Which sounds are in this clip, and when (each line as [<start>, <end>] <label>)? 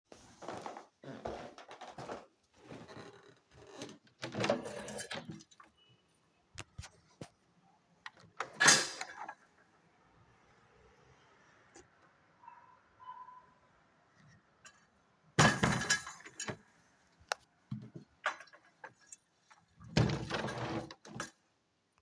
[0.39, 3.88] footsteps
[4.22, 5.50] window
[8.30, 9.45] window
[15.39, 16.64] window
[19.98, 21.33] window